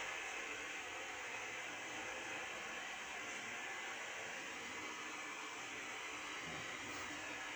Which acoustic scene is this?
subway train